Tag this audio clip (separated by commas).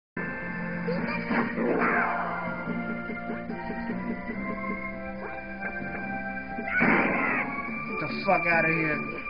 crash, Music, Speech